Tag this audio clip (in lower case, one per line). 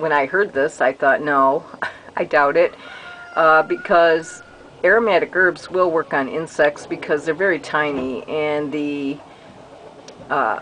speech